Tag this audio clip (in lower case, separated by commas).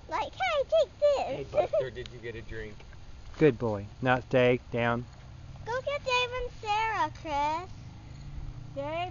silence